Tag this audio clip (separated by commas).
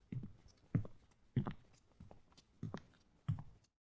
footsteps